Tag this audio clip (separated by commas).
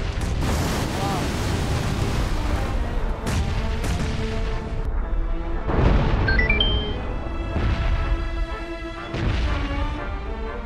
volcano explosion